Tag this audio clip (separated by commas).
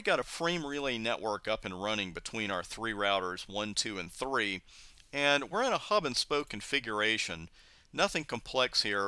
Speech